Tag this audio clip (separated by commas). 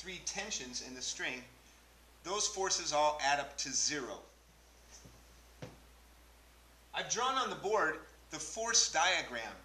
Speech